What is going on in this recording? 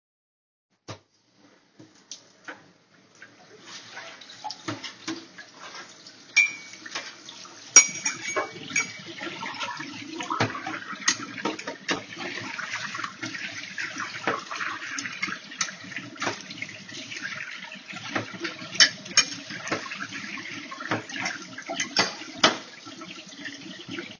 I turned on the sink, moved some dishes in the sink, then turned the water off.